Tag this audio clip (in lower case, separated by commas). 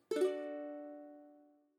musical instrument, plucked string instrument, music